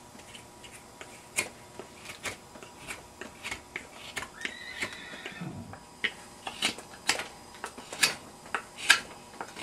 Scraping noise and a horse whinnies